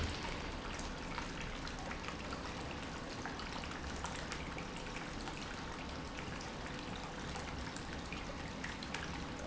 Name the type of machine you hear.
pump